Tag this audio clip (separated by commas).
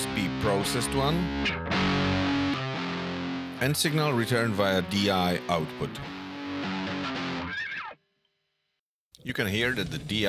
Music, Speech